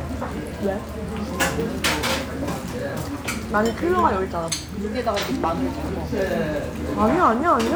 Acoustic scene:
restaurant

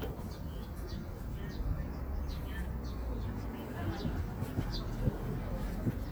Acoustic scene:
park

